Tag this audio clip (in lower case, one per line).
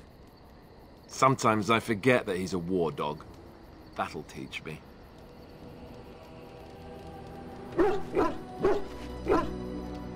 speech
music